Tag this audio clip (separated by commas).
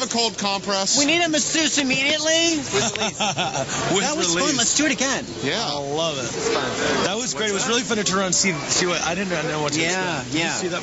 Speech